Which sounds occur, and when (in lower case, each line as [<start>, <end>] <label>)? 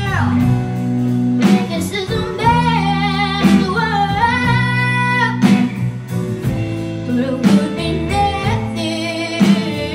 [0.00, 0.38] child singing
[0.00, 9.94] music
[1.39, 5.89] child singing
[7.08, 8.60] child singing
[8.75, 9.94] child singing